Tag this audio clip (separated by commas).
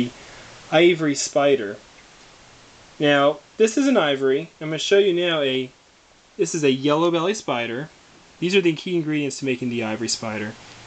inside a small room, Speech